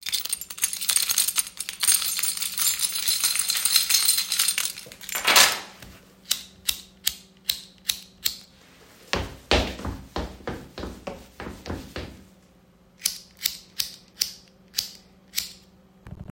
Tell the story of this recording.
I picked up my keys, causing the keychain to jingle. Holding the keys, I then walked across the room.